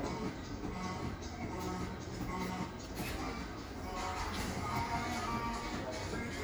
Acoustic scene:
cafe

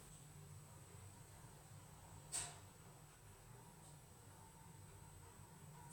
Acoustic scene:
elevator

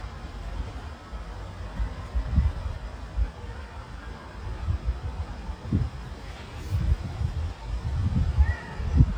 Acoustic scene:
residential area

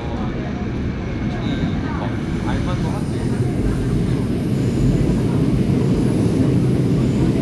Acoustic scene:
subway train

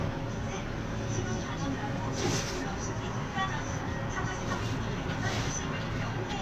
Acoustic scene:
bus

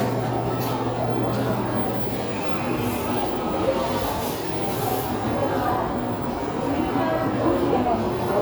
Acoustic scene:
cafe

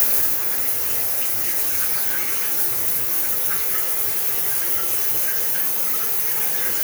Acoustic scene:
restroom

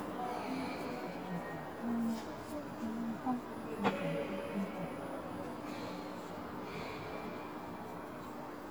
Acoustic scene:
subway station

